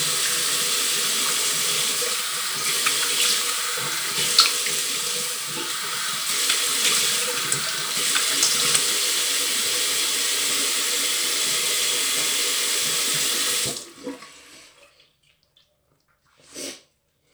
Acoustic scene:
restroom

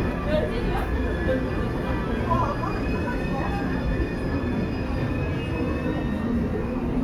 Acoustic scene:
subway station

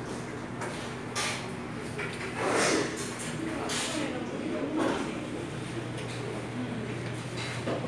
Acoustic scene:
restaurant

